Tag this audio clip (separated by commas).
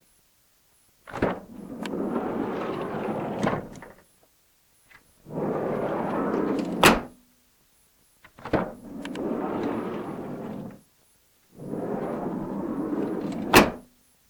home sounds, Sliding door, Door